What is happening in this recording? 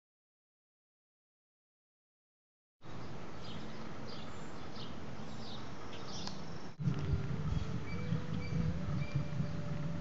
Birds chirp and something squeaks while leaves rustle